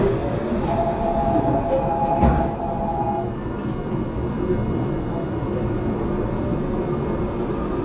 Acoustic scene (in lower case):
subway train